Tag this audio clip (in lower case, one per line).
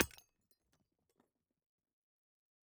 hammer
tools